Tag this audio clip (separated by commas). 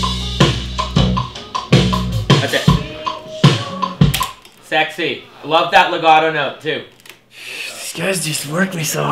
Music, Speech